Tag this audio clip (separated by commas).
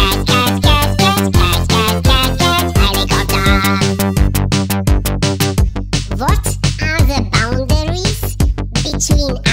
Speech, Music